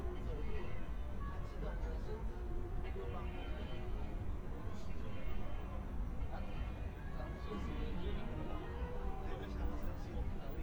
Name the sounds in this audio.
person or small group talking